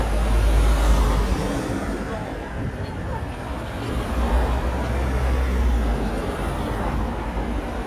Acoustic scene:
street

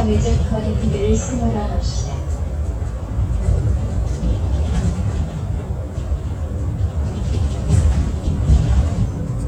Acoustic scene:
bus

